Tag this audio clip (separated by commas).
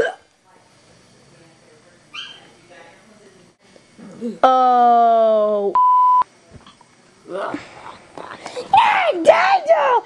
Speech, inside a small room